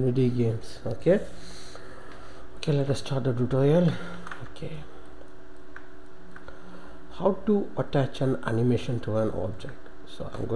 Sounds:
speech

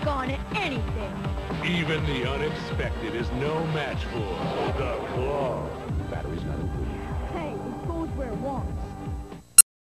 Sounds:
music
speech

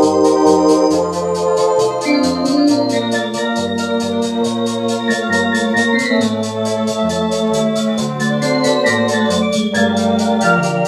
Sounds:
electronic organ
organ
playing electronic organ

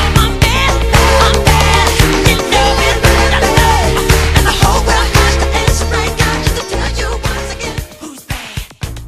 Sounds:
disco

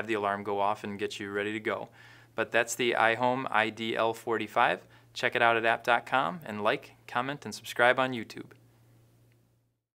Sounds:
speech

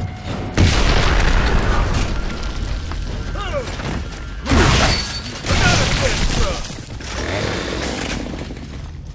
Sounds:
speech

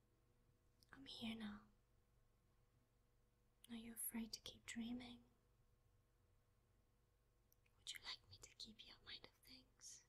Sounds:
whispering
speech

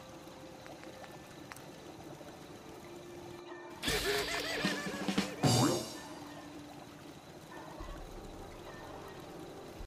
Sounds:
music

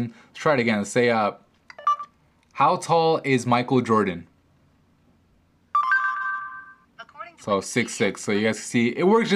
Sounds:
speech

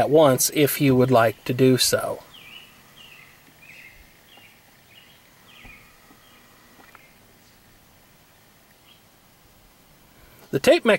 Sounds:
outside, urban or man-made
speech

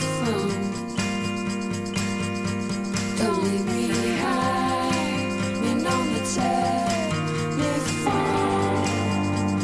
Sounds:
music

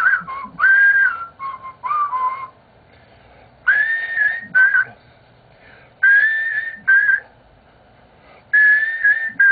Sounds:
whistling

